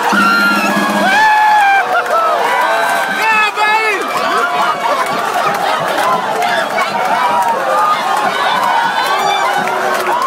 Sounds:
speech, music, crowd

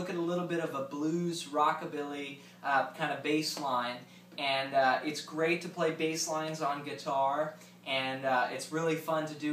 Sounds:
speech

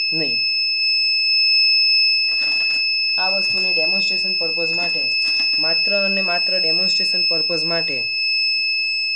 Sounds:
speech, inside a small room

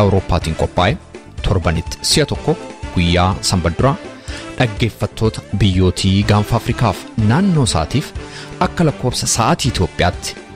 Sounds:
speech, music

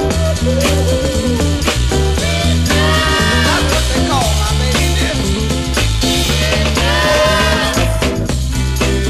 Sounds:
music

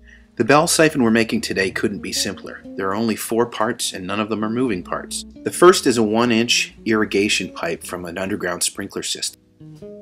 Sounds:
speech, music

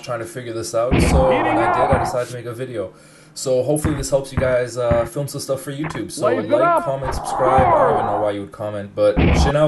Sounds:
speech

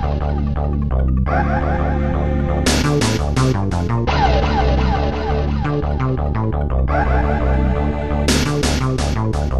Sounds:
music

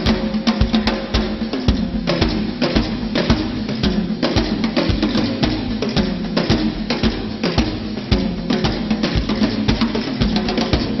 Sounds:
drum, musical instrument, music, drum kit

